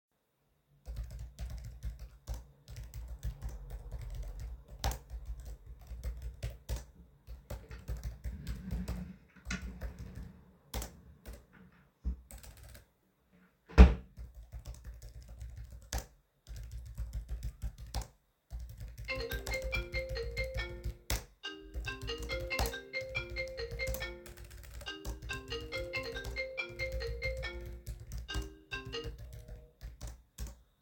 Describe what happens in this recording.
The device is placed on a desk in an office-like workspace. Keyboard typing is heard during computer work, then a desk drawer is opened and closed. During the scene, a phone starts ringing.